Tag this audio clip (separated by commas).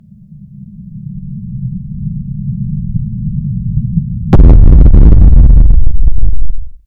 Explosion